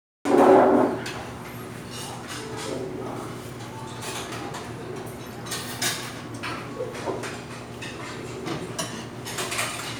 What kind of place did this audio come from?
restaurant